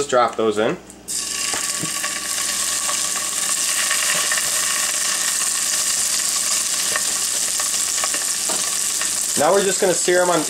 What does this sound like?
The sound of cooking food in oil or another fat